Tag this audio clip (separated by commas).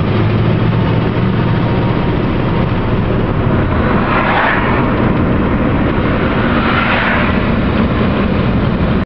Car, Vehicle, Engine